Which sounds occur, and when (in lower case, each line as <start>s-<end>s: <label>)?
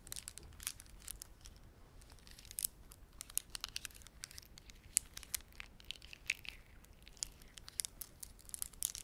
0.0s-1.6s: crumpling
0.0s-9.0s: background noise
2.0s-9.0s: crumpling